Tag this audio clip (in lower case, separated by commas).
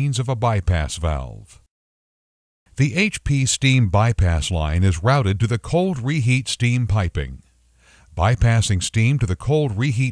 speech